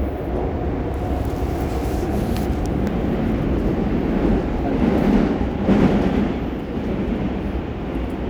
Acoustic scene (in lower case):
subway train